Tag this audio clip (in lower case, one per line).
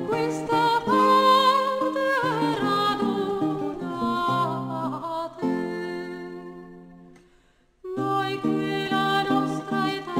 music